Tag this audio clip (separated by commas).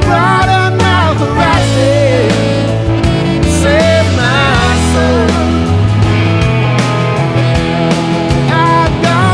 Music